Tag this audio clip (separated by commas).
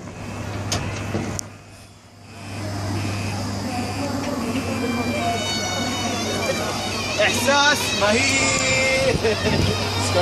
Speech, Music